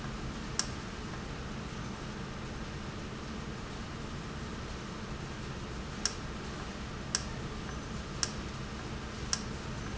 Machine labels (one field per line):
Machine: valve